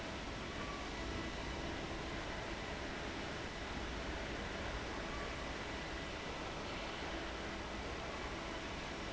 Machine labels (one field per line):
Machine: fan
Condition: abnormal